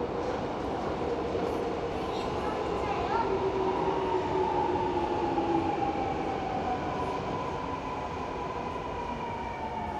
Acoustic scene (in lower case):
subway station